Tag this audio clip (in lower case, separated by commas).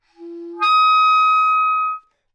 musical instrument, music, woodwind instrument